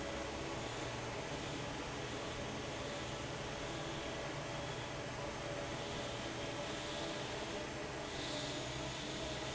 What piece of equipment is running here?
fan